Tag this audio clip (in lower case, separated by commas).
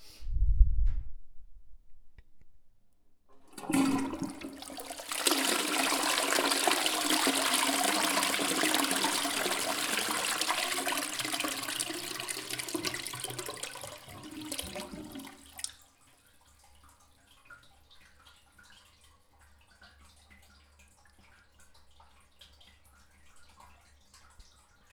home sounds, dribble, toilet flush, pour, liquid